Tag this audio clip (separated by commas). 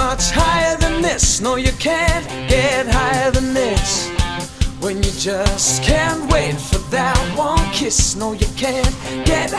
Rock and roll, Roll, Music